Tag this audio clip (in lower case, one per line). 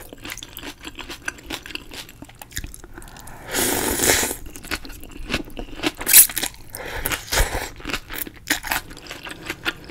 people slurping